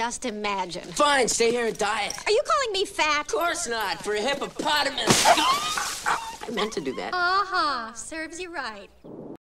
Young male voice dialog with young female voice followed by a slap and a dog whimper